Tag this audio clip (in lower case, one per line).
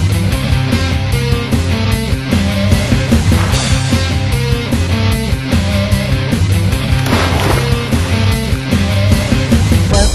heavy metal